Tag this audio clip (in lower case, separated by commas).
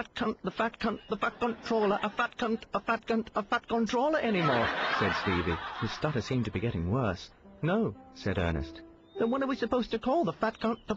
music, speech